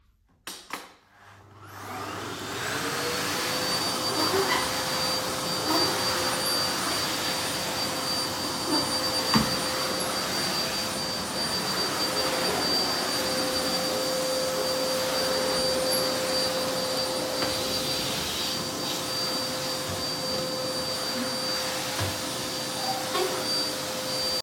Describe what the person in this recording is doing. I turned on the vacuum cleaner and started cleaning the floor.